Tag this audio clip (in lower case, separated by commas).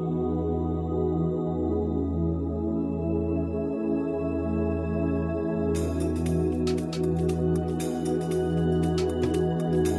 happy music, music